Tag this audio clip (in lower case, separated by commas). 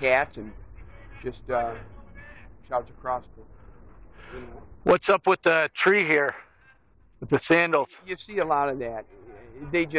speech